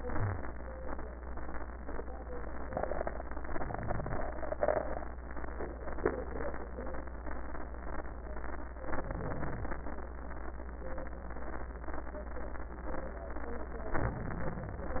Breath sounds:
0.00-0.47 s: crackles
0.00-0.52 s: exhalation
3.85-4.59 s: inhalation
4.61-5.36 s: exhalation
8.84-9.89 s: inhalation
9.89-11.01 s: exhalation
13.94-15.00 s: inhalation

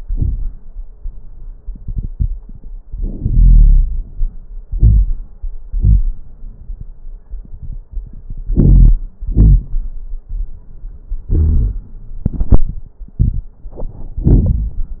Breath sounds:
2.84-4.07 s: inhalation
3.21-4.05 s: wheeze
4.70-5.23 s: exhalation
4.70-5.23 s: crackles
8.53-8.99 s: inhalation
8.53-8.99 s: crackles
9.24-9.90 s: exhalation
9.24-9.90 s: crackles
11.33-11.91 s: wheeze

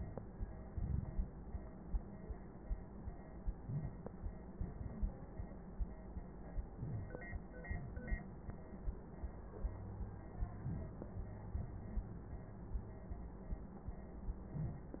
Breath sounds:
0.72-1.37 s: inhalation
3.59-4.23 s: inhalation
6.74-7.38 s: inhalation
10.64-11.10 s: inhalation

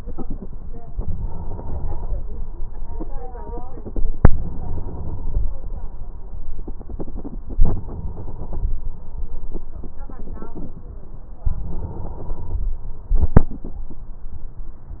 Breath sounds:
0.94-2.44 s: inhalation
4.30-5.64 s: inhalation
7.61-8.74 s: inhalation
11.56-12.69 s: inhalation

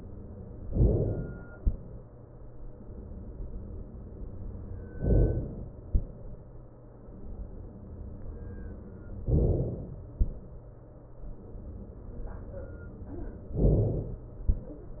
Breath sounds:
0.68-1.54 s: inhalation
5.04-5.90 s: inhalation
9.32-10.18 s: inhalation
13.58-14.44 s: inhalation

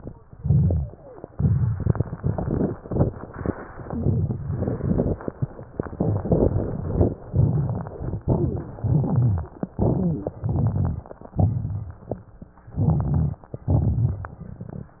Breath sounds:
0.24-0.98 s: exhalation
0.24-0.98 s: crackles
1.26-2.16 s: inhalation
1.30-2.10 s: crackles
2.15-2.80 s: crackles
2.78-3.53 s: crackles
8.22-8.68 s: inhalation
8.22-8.68 s: crackles
8.76-9.55 s: crackles
8.76-9.59 s: inhalation
8.76-9.59 s: exhalation
9.55-10.30 s: crackles
9.57-10.32 s: exhalation
10.34-11.27 s: inhalation
10.36-11.32 s: crackles
11.32-12.29 s: crackles
11.34-12.28 s: exhalation
12.56-13.52 s: crackles
12.60-13.49 s: inhalation
13.60-14.89 s: crackles

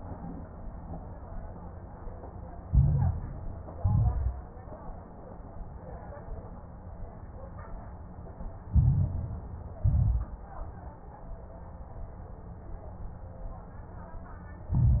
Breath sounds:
2.66-3.74 s: inhalation
2.66-3.74 s: crackles
3.76-4.50 s: exhalation
3.76-4.50 s: crackles
8.70-9.78 s: inhalation
8.70-9.78 s: crackles
9.84-10.45 s: exhalation
9.84-10.45 s: crackles
14.71-15.00 s: inhalation
14.71-15.00 s: crackles

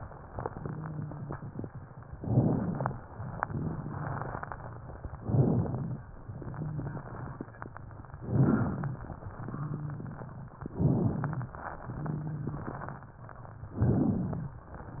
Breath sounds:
0.30-1.63 s: exhalation
0.30-1.63 s: crackles
2.11-3.02 s: inhalation
2.11-3.02 s: crackles
3.42-4.59 s: exhalation
3.42-4.59 s: crackles
5.14-6.05 s: inhalation
5.14-6.05 s: crackles
6.32-7.50 s: exhalation
6.32-7.50 s: crackles
8.20-9.11 s: inhalation
8.20-9.11 s: crackles
9.39-10.49 s: exhalation
9.39-10.49 s: crackles
10.66-11.57 s: inhalation
10.66-11.57 s: crackles
11.90-13.00 s: exhalation
11.90-13.00 s: crackles
13.72-14.63 s: inhalation
13.72-14.63 s: crackles

